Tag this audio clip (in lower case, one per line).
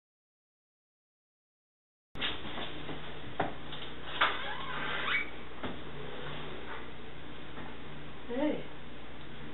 speech